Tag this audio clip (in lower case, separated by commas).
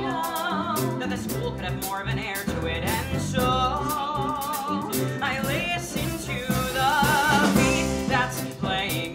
jazz, pop music, rhythm and blues, music